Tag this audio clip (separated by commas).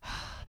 Respiratory sounds, Breathing